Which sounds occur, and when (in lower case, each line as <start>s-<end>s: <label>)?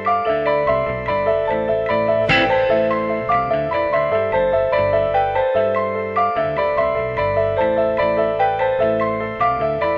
0.0s-9.9s: music